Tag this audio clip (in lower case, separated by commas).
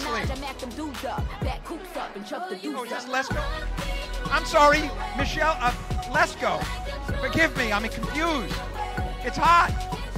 music, speech